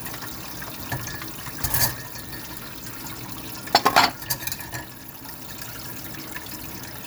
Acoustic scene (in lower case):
kitchen